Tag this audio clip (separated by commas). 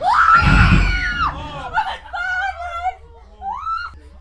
Screaming, Human voice